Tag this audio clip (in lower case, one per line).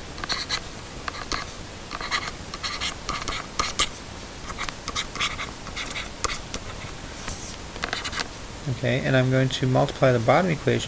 speech
inside a small room